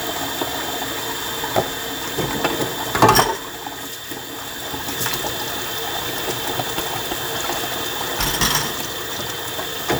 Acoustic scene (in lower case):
kitchen